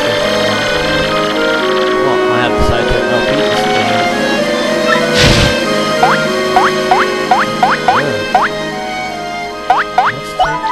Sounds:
Speech, Music

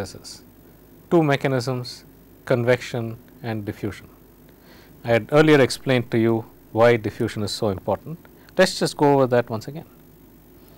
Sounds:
Speech

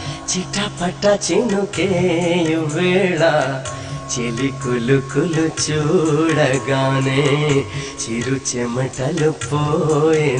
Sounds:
Carnatic music

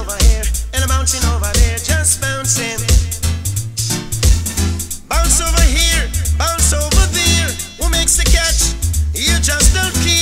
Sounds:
Music

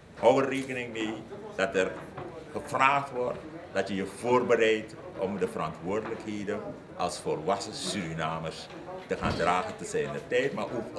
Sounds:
Speech

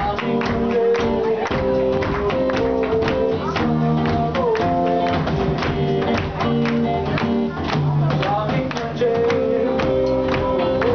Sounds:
Speech, Music, Punk rock, Rock and roll

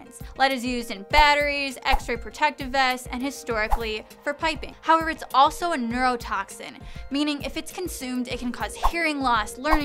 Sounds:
Speech, Music

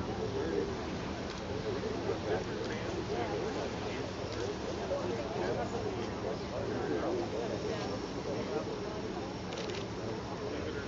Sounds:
Speech

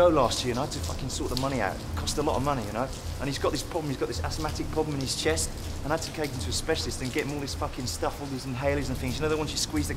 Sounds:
Speech

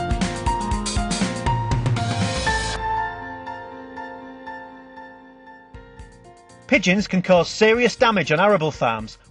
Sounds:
Music, Speech

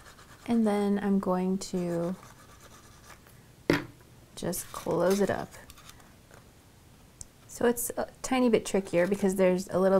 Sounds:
inside a small room, Speech

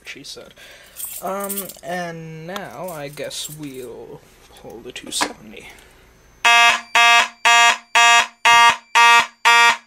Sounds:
Speech, Fire alarm

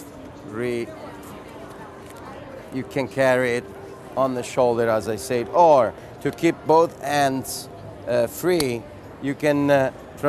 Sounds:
Speech

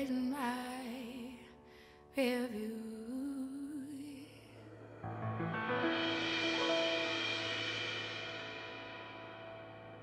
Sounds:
Singing

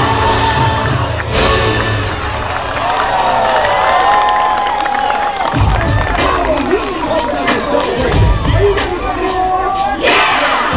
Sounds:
Speech, Music

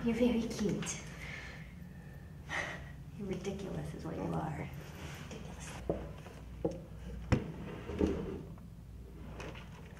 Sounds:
otter growling

